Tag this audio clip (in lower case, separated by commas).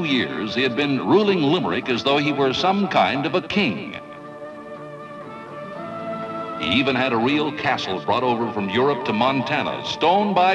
music, speech